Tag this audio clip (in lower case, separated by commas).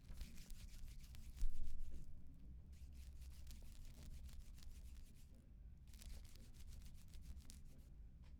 hands